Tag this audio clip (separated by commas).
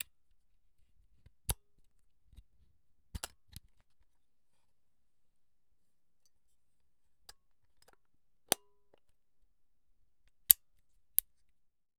Camera, Mechanisms